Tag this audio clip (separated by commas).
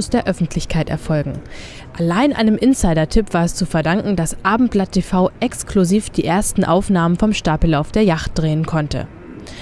Speech